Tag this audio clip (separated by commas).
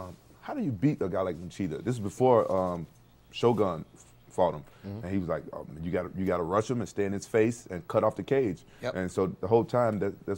Speech